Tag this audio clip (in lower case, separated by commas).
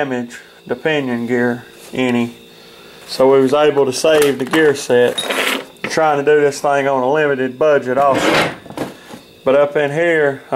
speech